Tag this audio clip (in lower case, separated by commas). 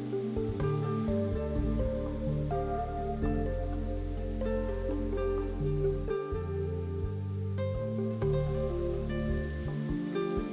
music